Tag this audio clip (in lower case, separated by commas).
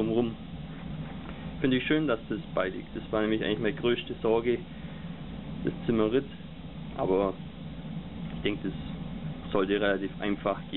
speech, inside a small room